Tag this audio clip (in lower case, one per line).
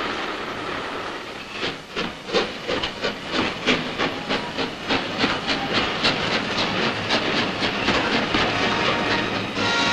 train whistling